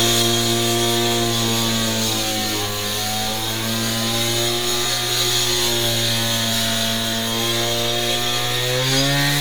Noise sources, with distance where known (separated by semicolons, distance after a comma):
unidentified powered saw, near